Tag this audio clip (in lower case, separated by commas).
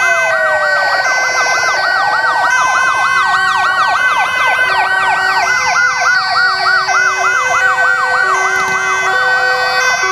fire engine